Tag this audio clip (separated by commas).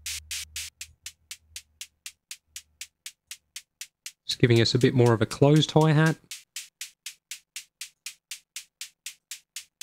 Drum machine, Music, Synthesizer, Speech